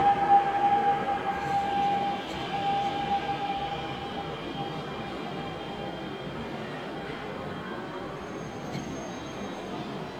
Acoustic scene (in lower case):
subway station